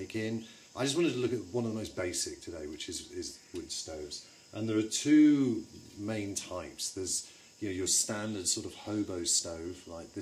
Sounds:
speech

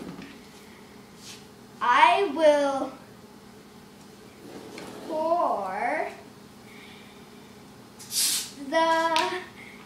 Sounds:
speech, inside a small room

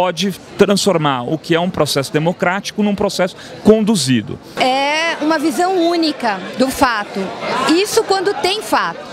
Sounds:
speech

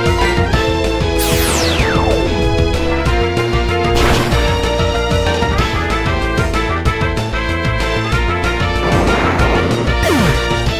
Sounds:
music

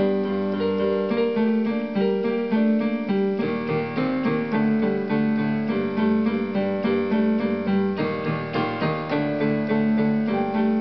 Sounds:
electric piano, keyboard (musical), piano

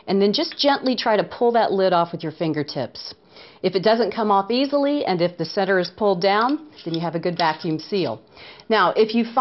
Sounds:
speech

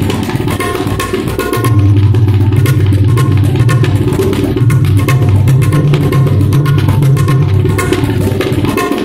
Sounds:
playing tabla

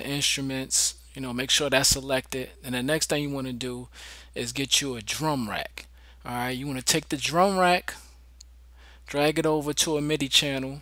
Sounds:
speech

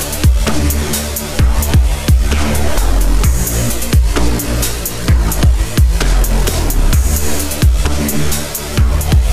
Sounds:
dubstep, drum and bass, music, electronic music

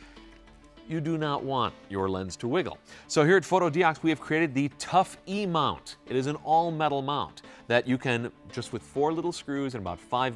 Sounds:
music, speech

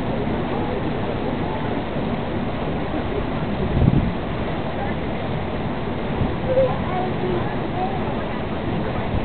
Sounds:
speech

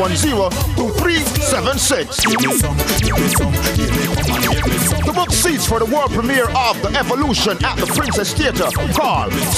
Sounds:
speech, music

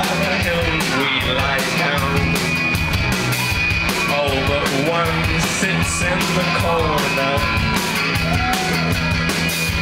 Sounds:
music

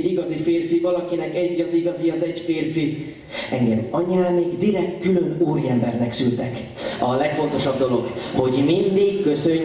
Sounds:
speech

